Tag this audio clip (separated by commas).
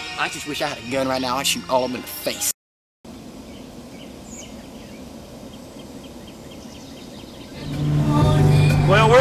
Insect